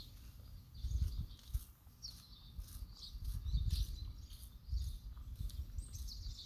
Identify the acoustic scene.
park